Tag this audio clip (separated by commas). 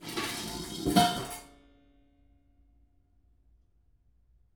home sounds, dishes, pots and pans